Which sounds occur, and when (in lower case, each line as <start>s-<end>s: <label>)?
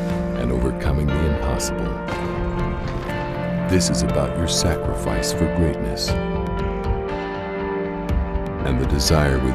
0.0s-9.5s: music
0.3s-1.7s: male speech
3.7s-6.2s: male speech
8.6s-9.5s: male speech